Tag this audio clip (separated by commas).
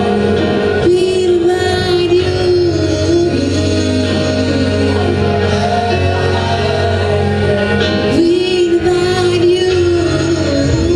Choir, Singing, Gospel music, Music